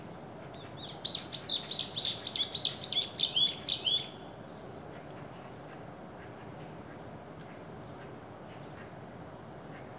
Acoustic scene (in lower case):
park